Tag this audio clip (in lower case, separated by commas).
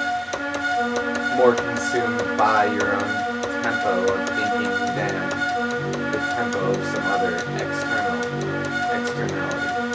inside a small room, music, speech